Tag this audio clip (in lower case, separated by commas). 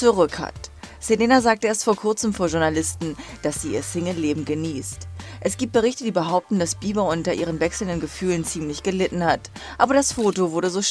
speech